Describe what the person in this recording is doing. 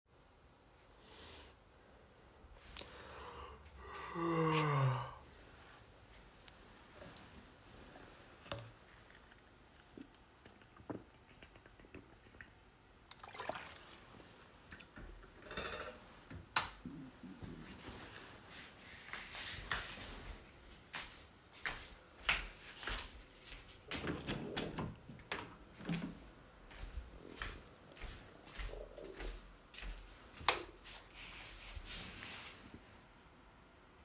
I got up in my bed in the middle of the night, yawned, got a slurp of water from a bottle and turned on the light. I walked to the windows, opened it, then walked back to my bed, layed down and turned of the light.